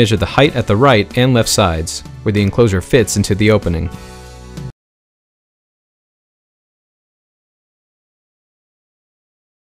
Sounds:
Speech, Music

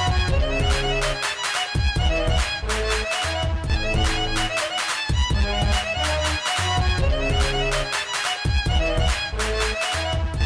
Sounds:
Music

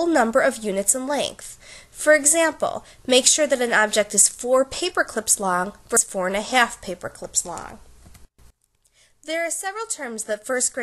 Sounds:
Narration

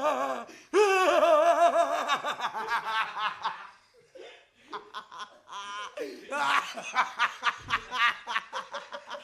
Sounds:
Snicker, people sniggering

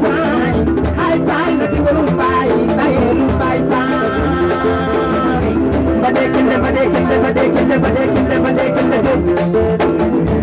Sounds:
Music, Drum, Percussion, Folk music, Musical instrument

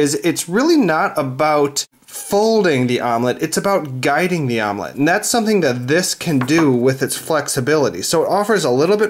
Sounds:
Speech

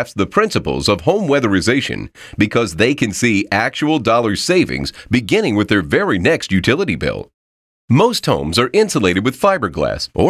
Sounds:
Speech

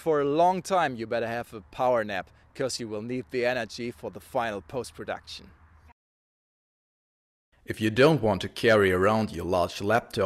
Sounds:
outside, rural or natural, Speech

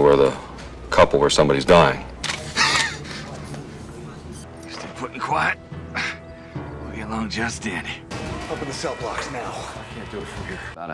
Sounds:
Speech, Music

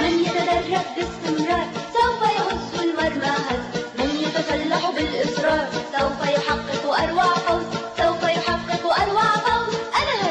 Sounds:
Soundtrack music, Music, Theme music

